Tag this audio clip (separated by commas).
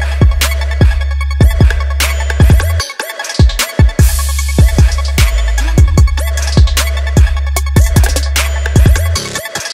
Music